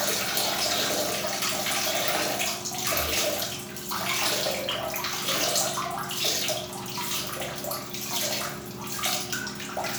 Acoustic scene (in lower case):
restroom